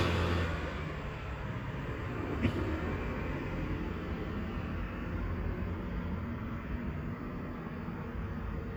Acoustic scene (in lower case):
street